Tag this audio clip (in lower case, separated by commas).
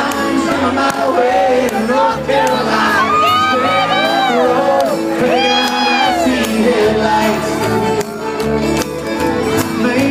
speech, music